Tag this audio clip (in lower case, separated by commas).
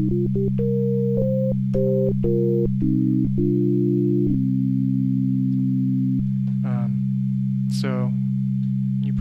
keyboard (musical), electronic music, music, musical instrument, sampler, speech, synthesizer